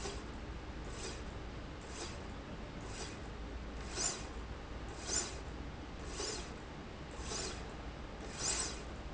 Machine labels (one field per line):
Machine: slide rail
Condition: normal